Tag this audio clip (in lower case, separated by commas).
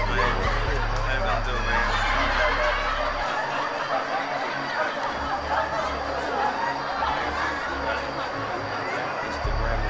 music, inside a large room or hall, speech, chatter